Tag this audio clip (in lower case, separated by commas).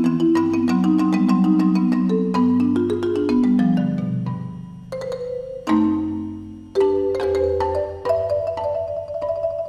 marimba, musical instrument, music, playing marimba, percussion